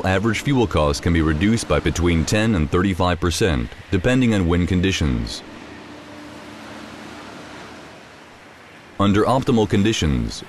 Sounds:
Speech, Rustling leaves

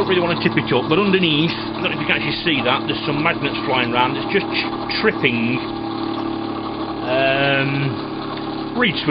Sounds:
Speech

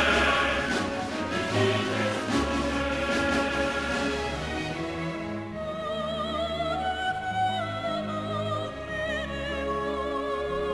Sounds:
Music

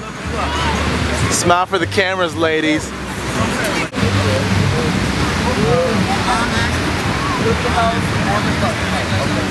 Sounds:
Ocean

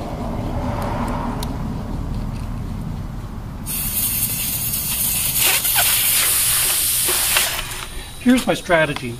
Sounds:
Speech

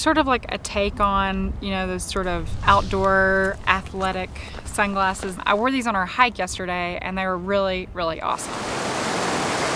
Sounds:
Waterfall, Pink noise

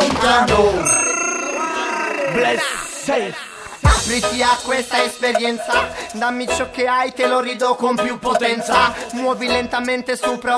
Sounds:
Sound effect, Music

